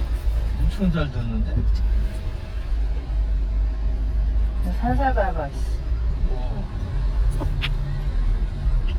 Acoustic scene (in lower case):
car